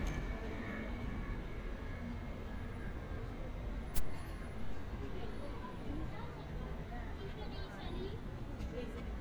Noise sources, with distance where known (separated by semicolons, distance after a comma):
person or small group talking, near